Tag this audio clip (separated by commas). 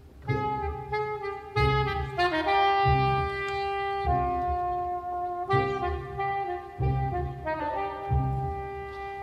Bowed string instrument, Double bass, Cello